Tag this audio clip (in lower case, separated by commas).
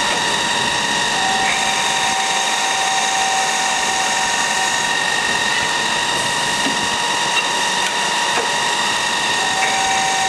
power tool, tools